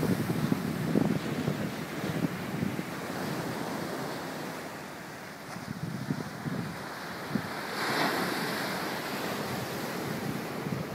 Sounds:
outside, rural or natural

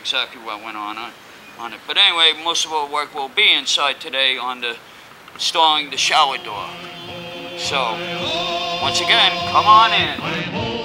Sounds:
speech, music

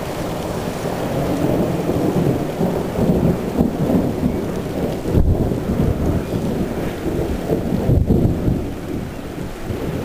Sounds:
rain, thunderstorm, thunder

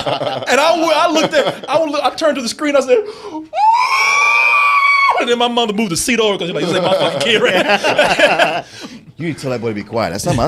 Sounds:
speech

